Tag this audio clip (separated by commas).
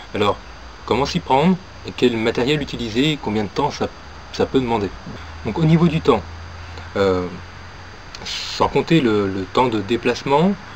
Speech